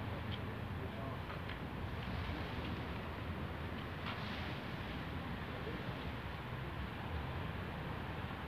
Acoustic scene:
residential area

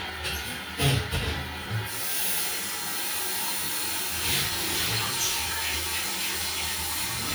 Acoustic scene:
restroom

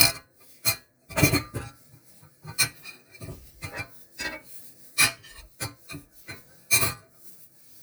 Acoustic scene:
kitchen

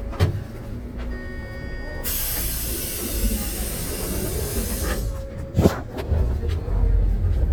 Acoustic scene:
bus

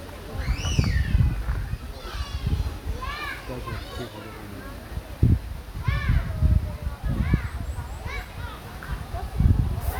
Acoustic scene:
park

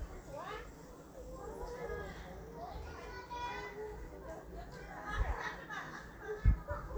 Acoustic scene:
residential area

